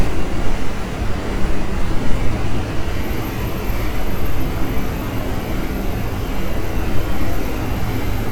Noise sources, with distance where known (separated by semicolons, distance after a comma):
unidentified impact machinery, near